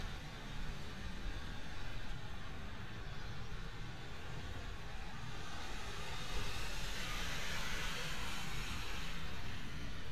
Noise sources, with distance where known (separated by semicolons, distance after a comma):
medium-sounding engine, near